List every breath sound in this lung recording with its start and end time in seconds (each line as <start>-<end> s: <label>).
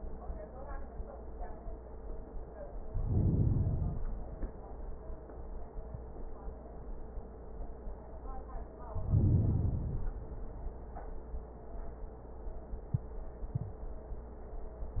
2.79-4.20 s: inhalation
8.92-10.32 s: inhalation